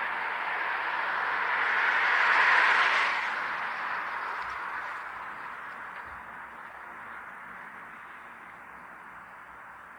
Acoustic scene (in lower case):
street